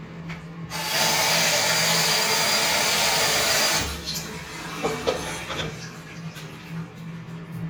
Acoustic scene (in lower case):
restroom